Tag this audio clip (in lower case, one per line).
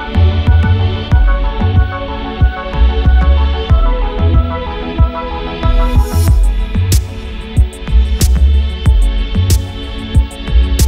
music